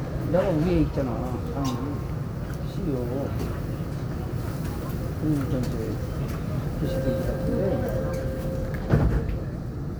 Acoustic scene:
subway train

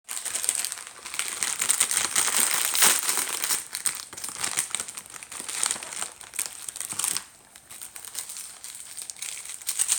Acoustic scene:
kitchen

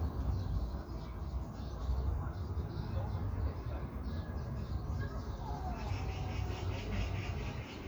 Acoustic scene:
park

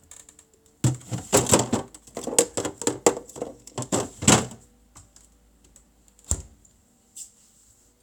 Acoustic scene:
kitchen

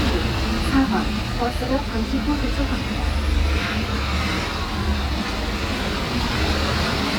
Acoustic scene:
street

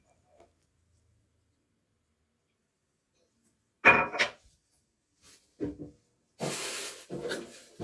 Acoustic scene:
kitchen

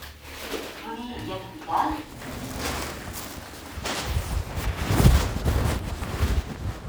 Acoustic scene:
elevator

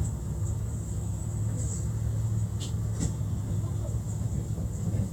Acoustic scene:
bus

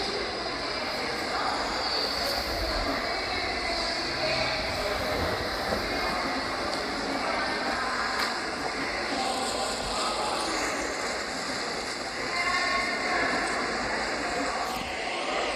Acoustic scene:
subway station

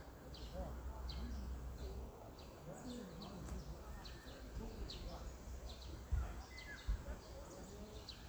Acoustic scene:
park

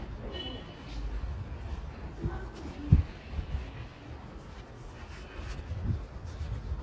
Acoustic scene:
residential area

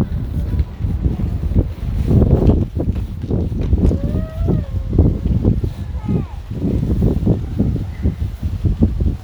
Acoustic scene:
residential area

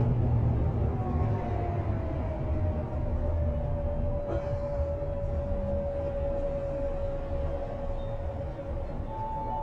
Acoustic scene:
bus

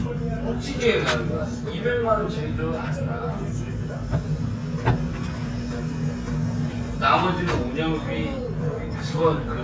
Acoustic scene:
restaurant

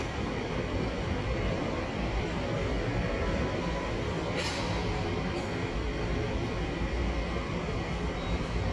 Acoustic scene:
subway station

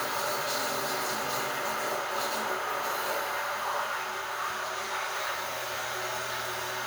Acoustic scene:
restroom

